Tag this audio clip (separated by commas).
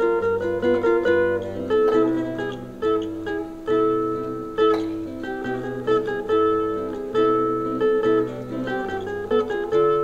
Music, Zither